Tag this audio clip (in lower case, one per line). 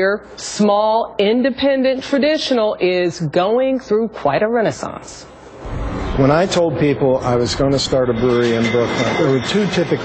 speech